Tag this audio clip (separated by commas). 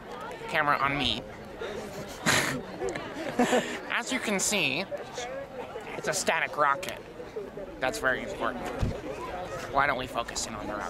Speech